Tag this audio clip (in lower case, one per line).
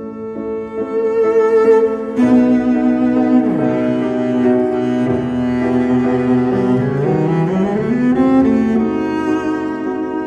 playing double bass